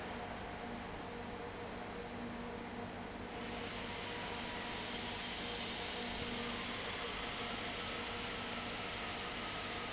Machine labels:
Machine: fan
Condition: abnormal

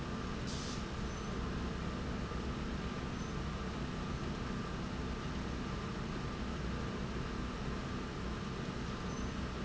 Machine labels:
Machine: slide rail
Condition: normal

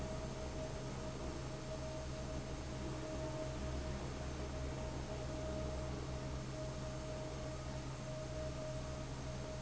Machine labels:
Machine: fan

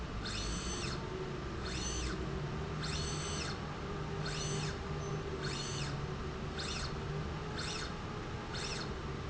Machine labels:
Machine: slide rail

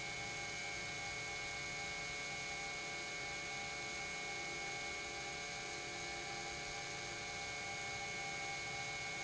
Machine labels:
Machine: pump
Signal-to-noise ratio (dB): 6 dB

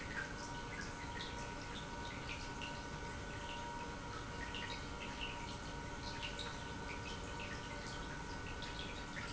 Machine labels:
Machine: pump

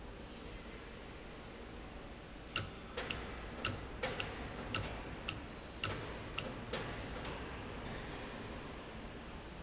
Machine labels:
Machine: valve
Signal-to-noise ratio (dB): 0 dB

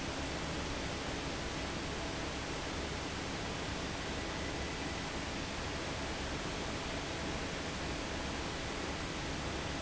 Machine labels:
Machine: fan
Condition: normal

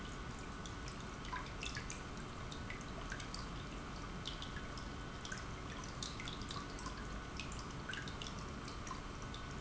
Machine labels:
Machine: pump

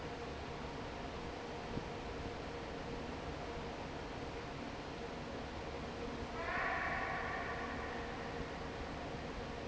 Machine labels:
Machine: fan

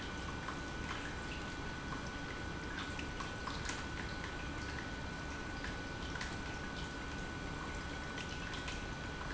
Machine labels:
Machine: pump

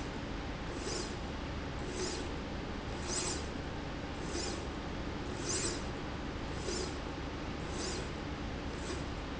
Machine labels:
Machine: slide rail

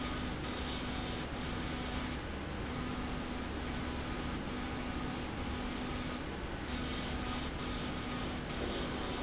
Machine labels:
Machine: slide rail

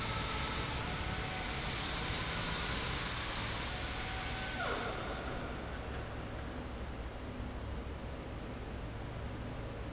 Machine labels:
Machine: fan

